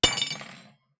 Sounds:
Domestic sounds, Cutlery

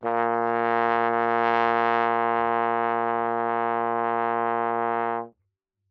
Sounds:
Musical instrument, Brass instrument, Music

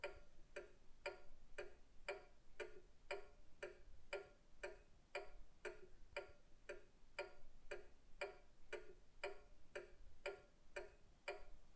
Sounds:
Mechanisms, Clock

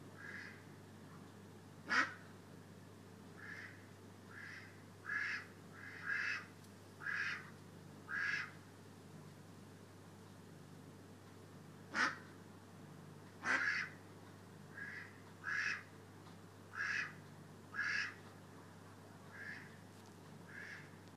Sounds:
Animal, Fowl, livestock

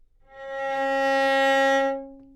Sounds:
Music, Bowed string instrument, Musical instrument

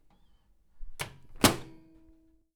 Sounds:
home sounds, Microwave oven

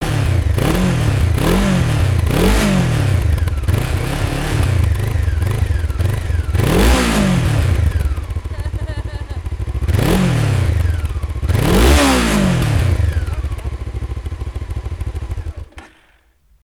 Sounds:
Motorcycle, Vehicle, Motor vehicle (road)

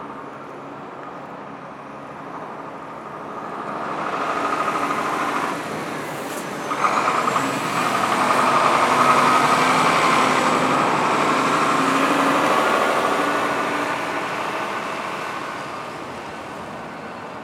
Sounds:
Motor vehicle (road), Vehicle, Truck

